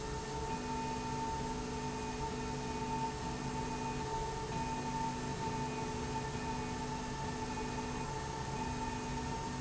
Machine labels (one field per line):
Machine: slide rail